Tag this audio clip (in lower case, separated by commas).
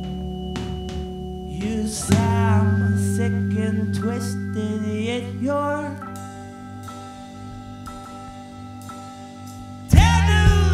music